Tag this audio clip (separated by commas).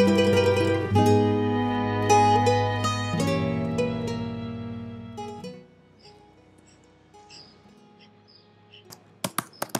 Sad music, Music